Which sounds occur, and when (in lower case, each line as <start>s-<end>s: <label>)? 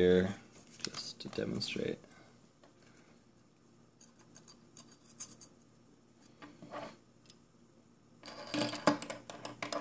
0.0s-0.3s: man speaking
0.0s-9.8s: mechanisms
0.7s-1.1s: generic impact sounds
0.8s-2.0s: man speaking
2.0s-2.4s: breathing
2.5s-3.1s: generic impact sounds
2.7s-3.2s: breathing
4.0s-4.5s: generic impact sounds
4.7s-5.5s: generic impact sounds
6.2s-6.5s: generic impact sounds
6.6s-7.0s: generic impact sounds
7.2s-7.4s: generic impact sounds
8.2s-9.8s: generic impact sounds